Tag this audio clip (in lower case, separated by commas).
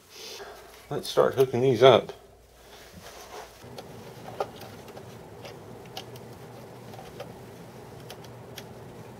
speech, inside a small room